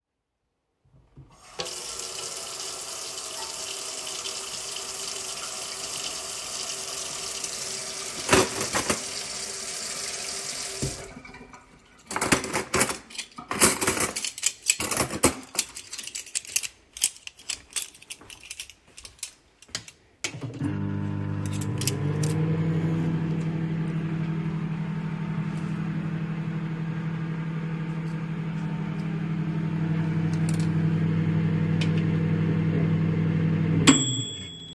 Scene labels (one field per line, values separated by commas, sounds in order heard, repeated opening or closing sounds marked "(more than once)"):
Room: kitchen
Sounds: running water, cutlery and dishes, microwave